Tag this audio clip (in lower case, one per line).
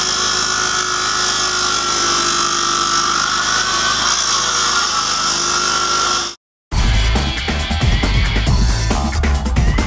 power tool
music